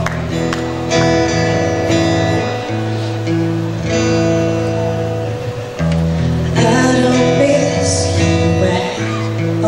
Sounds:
music, female singing

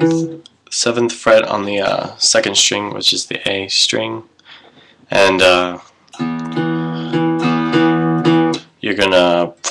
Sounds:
speech, music

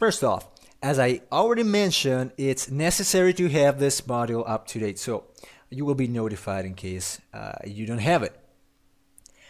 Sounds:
speech, monologue

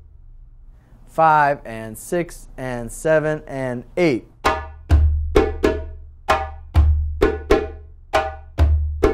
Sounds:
playing djembe

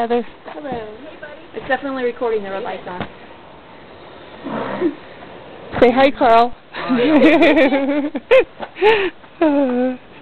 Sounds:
speech

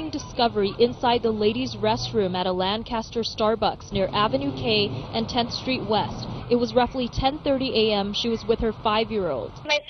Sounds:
speech

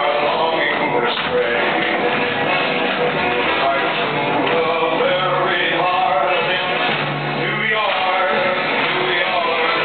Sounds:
music, tap

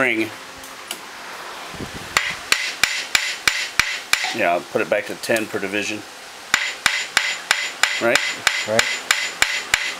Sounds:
speech

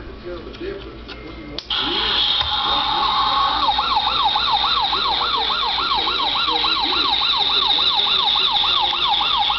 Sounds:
speech, siren, police car (siren)

